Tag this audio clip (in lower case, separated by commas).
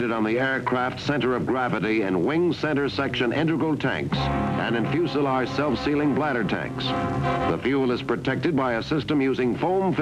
speech, music